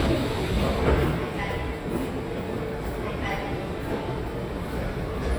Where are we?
in a subway station